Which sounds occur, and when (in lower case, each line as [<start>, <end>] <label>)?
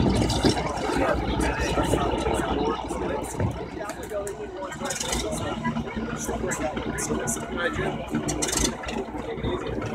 [0.00, 9.94] speech noise
[0.00, 9.94] propeller
[0.00, 9.94] stream